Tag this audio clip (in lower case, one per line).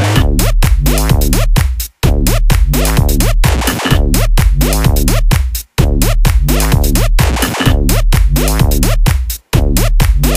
music